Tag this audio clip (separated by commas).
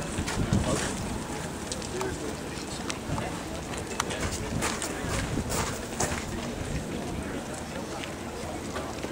Speech